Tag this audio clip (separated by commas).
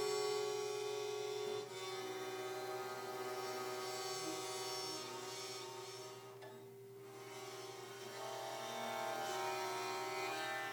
Guitar, Musical instrument, Acoustic guitar, Music